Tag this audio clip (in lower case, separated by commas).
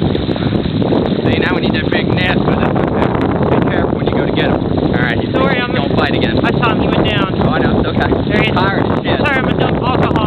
speech